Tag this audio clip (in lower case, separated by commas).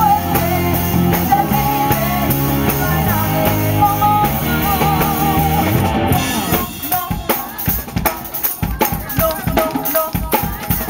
female singing, music